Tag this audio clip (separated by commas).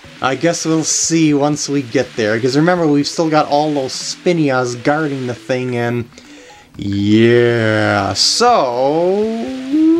Speech, Music